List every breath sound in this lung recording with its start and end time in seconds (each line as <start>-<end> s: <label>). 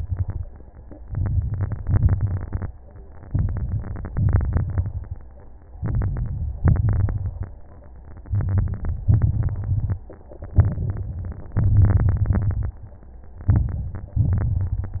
0.00-0.46 s: exhalation
0.00-0.46 s: crackles
1.02-1.82 s: inhalation
1.02-1.82 s: crackles
1.84-2.68 s: exhalation
1.84-2.68 s: crackles
3.27-4.12 s: inhalation
3.27-4.12 s: crackles
4.13-5.17 s: exhalation
4.13-5.17 s: crackles
5.79-6.60 s: inhalation
5.79-6.60 s: crackles
6.62-7.43 s: exhalation
6.62-7.43 s: crackles
8.25-9.06 s: inhalation
8.25-9.06 s: crackles
9.10-9.99 s: exhalation
9.10-9.99 s: crackles
10.57-11.46 s: inhalation
10.57-11.46 s: crackles
11.57-12.76 s: exhalation
11.57-12.76 s: crackles
13.49-14.17 s: inhalation
13.49-14.17 s: crackles
14.19-15.00 s: exhalation
14.19-15.00 s: crackles